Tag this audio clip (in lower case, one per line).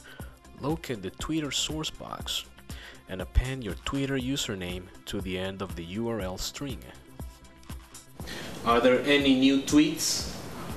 speech
music